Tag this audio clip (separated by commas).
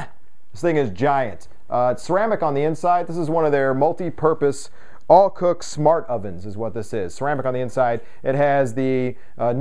Speech